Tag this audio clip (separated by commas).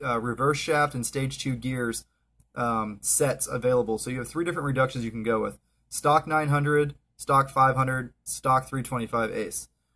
Speech